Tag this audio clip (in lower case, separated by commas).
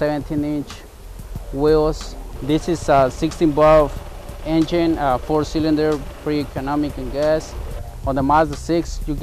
music, speech